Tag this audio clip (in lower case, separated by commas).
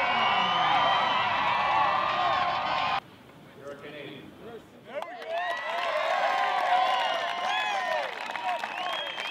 speech, cheering